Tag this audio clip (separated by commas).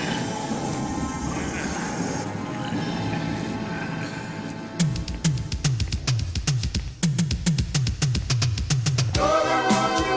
Music